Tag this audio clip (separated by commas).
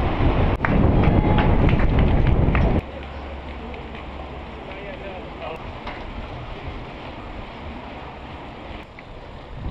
Vehicle, Bicycle